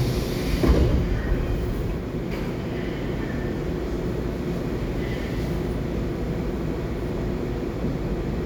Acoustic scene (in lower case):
subway train